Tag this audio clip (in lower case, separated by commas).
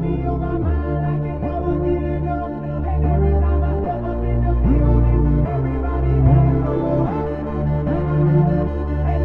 music, electronic music